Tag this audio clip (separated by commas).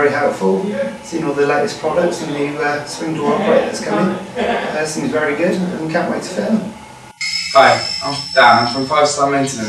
Speech